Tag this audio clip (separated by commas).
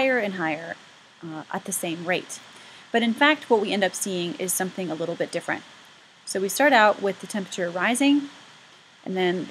Speech, Waterfall